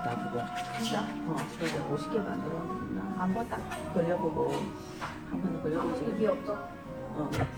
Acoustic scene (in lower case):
crowded indoor space